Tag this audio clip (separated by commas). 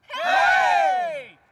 Cheering, Human group actions